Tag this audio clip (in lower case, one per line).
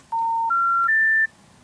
alarm
telephone